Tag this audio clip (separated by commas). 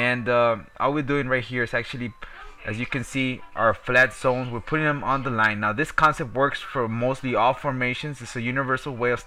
Music, Speech